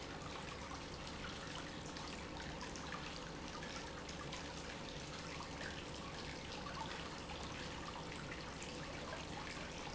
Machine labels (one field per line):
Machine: pump